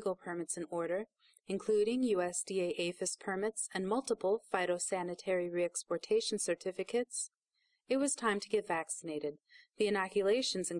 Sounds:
speech

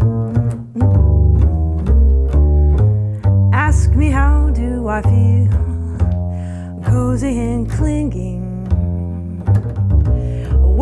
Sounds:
playing double bass

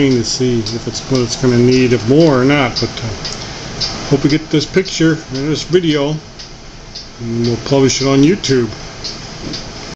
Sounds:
speech

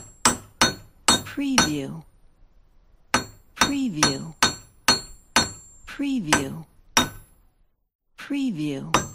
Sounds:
hammering nails

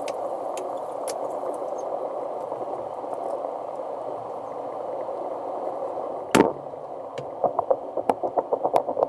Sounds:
boiling, liquid

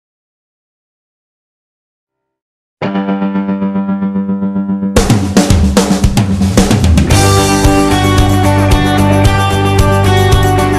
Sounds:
snare drum, drum kit, music

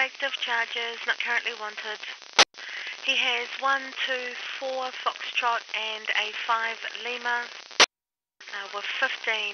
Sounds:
police radio chatter

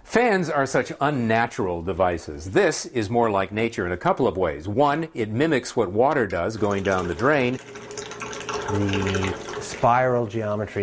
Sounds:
speech

